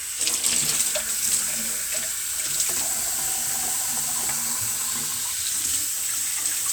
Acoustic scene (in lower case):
kitchen